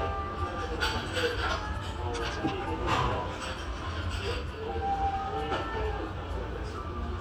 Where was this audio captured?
in a restaurant